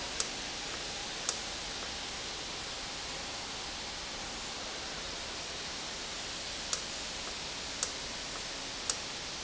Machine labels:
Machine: valve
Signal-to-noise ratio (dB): -6 dB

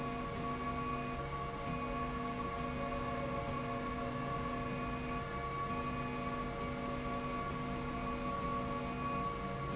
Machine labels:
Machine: slide rail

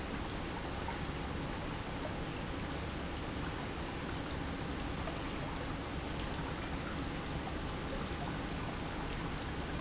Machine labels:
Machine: pump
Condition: normal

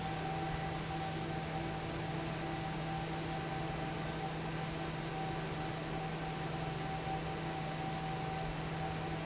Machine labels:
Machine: fan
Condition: normal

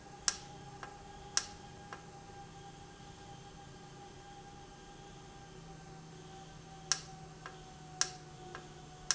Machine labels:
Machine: valve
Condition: normal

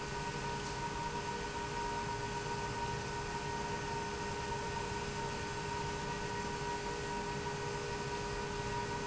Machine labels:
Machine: pump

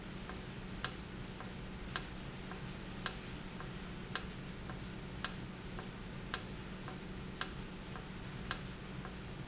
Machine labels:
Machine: valve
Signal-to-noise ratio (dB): 0 dB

